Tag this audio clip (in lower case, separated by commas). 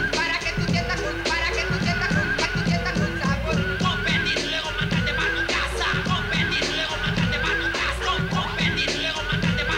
music